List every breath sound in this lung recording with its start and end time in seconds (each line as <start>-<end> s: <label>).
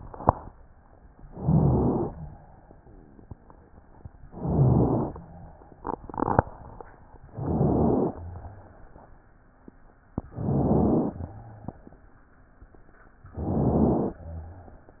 1.25-2.12 s: inhalation
1.25-2.12 s: rhonchi
2.14-2.80 s: exhalation
4.32-5.20 s: inhalation
4.32-5.20 s: rhonchi
5.24-5.89 s: exhalation
7.32-8.19 s: inhalation
7.32-8.19 s: rhonchi
8.19-8.85 s: exhalation
10.33-11.21 s: inhalation
10.33-11.21 s: rhonchi
11.21-11.86 s: exhalation
11.31-11.82 s: rhonchi
13.35-14.22 s: inhalation